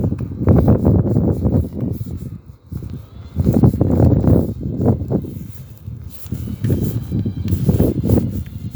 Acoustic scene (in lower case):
residential area